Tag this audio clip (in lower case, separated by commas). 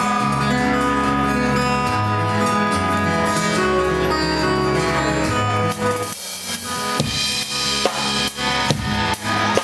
music, new-age music